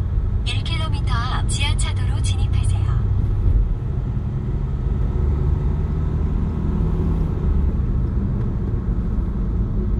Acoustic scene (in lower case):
car